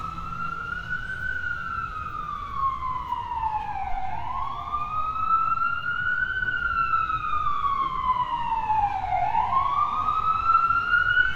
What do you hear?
siren